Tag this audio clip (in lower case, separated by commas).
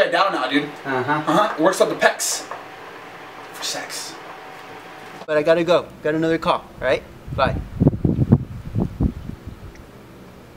speech